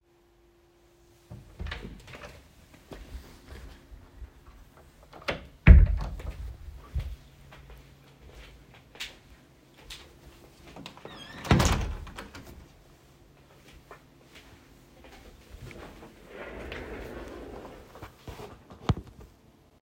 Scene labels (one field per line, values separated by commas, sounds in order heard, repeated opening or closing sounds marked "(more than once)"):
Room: office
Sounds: door (more than once), footsteps, window